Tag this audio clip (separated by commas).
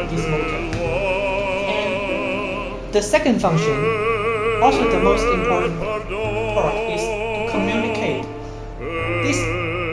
Speech, Music